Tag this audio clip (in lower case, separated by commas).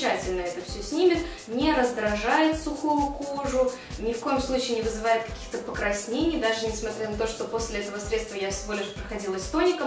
music, speech